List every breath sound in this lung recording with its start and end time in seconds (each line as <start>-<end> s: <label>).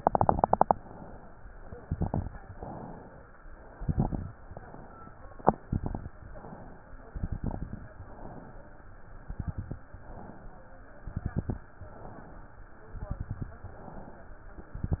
0.77-1.78 s: inhalation
1.79-2.52 s: exhalation
1.79-2.52 s: crackles
2.52-3.53 s: inhalation
3.60-4.32 s: exhalation
3.60-4.32 s: crackles
4.37-5.37 s: inhalation
5.40-6.13 s: exhalation
5.40-6.13 s: crackles
6.13-7.14 s: inhalation
7.13-7.86 s: exhalation
7.13-7.86 s: crackles
7.88-8.88 s: inhalation
9.13-9.85 s: exhalation
9.13-9.85 s: crackles
9.95-10.96 s: inhalation
10.99-11.72 s: exhalation
10.99-11.72 s: crackles
11.80-12.80 s: inhalation
12.89-13.62 s: exhalation
12.89-13.62 s: crackles
13.68-14.68 s: inhalation
14.81-15.00 s: exhalation
14.81-15.00 s: crackles